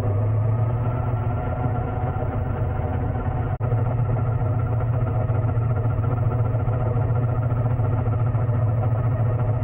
A car engine is vibrating